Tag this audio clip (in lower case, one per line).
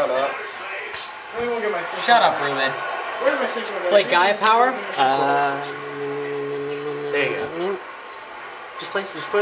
speech